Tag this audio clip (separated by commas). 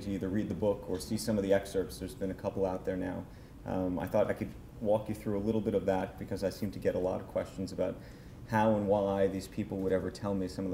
Speech